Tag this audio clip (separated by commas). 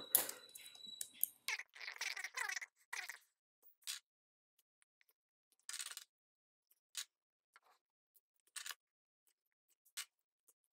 mouse clicking